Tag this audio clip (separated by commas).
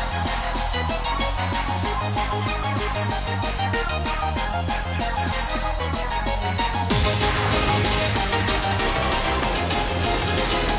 Video game music, Music